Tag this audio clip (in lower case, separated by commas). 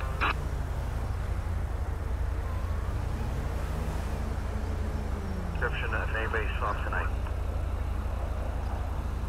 vehicle, car, speech